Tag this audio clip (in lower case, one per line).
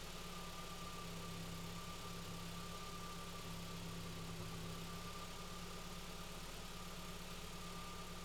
vehicle
car
engine
motor vehicle (road)